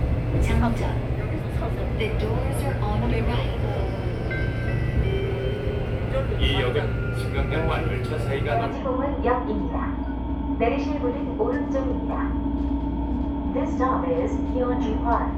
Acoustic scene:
subway train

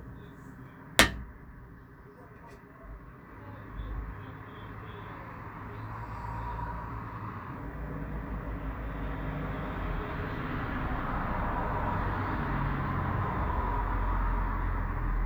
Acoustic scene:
street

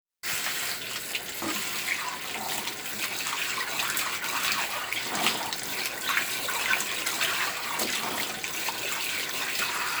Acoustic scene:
kitchen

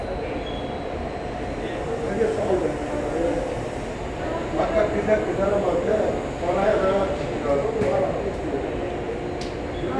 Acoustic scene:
subway station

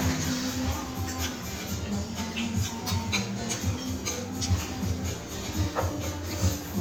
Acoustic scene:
restaurant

